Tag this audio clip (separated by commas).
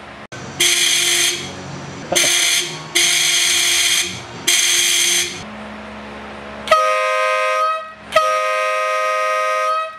Car, Motor vehicle (road), honking, Vehicle